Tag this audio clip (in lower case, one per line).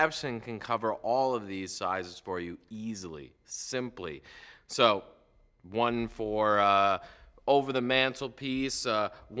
speech